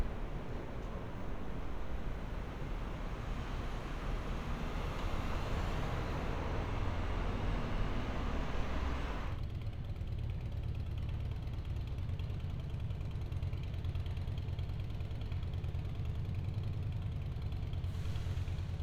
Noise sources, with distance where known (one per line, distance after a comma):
medium-sounding engine